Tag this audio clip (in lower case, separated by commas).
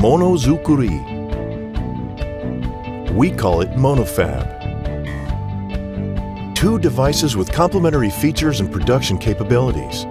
speech, music